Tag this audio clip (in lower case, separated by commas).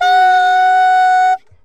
musical instrument, wind instrument, music